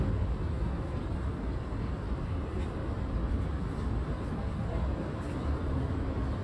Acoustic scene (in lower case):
residential area